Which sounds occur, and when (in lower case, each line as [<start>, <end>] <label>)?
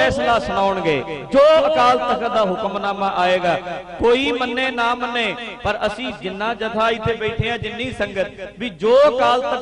[0.00, 9.61] music
[0.57, 2.44] man speaking
[2.65, 9.06] man speaking
[9.31, 9.61] man speaking